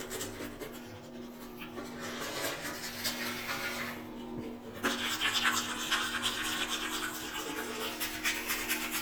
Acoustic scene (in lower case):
restroom